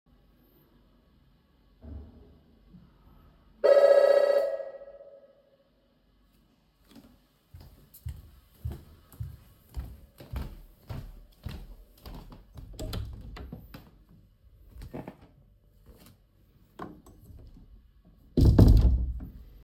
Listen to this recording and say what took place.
The bell rang, so i walked over the open the door, then i closed it.